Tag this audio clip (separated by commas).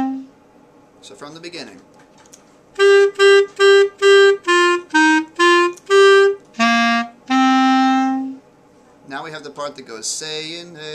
playing clarinet